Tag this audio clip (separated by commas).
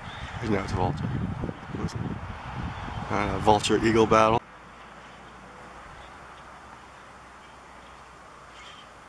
Speech